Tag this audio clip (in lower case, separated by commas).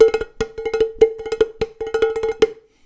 dishes, pots and pans, home sounds